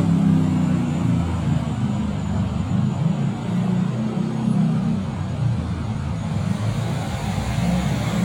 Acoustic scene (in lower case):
street